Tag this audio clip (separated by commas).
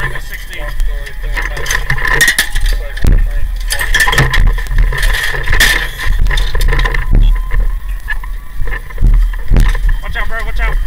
Speech